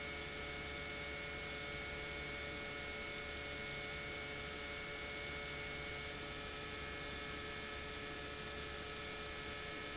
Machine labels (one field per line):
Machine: pump